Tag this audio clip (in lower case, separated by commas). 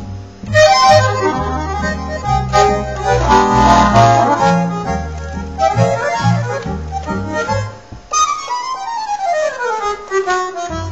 traditional music, musical instrument, music, accordion